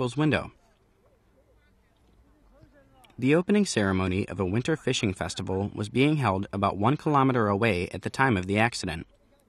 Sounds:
Speech

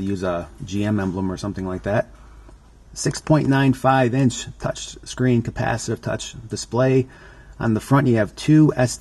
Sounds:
Speech

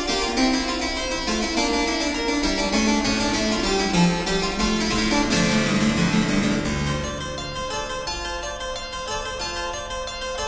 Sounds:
playing harpsichord, Harpsichord, Music

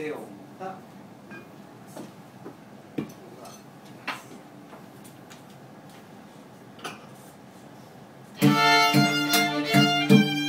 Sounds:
Violin, Musical instrument, Speech, Music

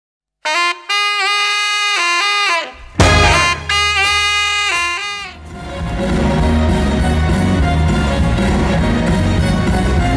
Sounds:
inside a large room or hall, Music

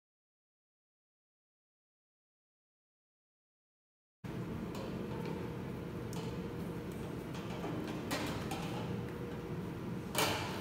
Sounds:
chimpanzee pant-hooting

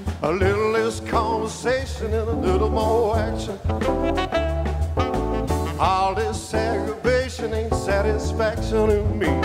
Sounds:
Music, Jazz

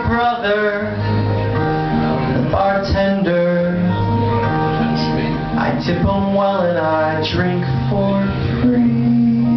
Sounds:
Music

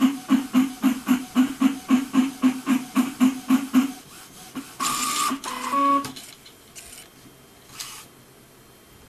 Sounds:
Printer

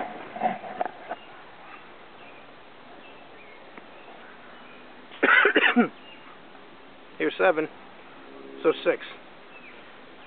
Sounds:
Speech

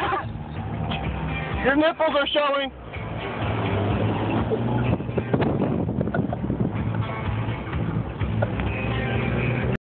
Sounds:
Speech, Vehicle, Music

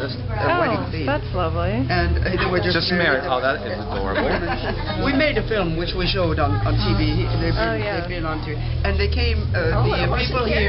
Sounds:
Speech, Music

